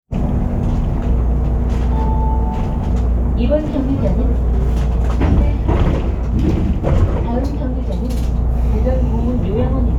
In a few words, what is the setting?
bus